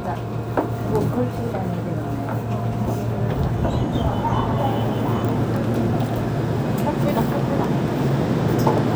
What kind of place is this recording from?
subway station